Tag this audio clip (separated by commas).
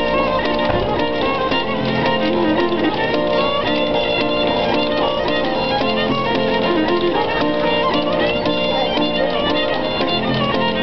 Musical instrument, Music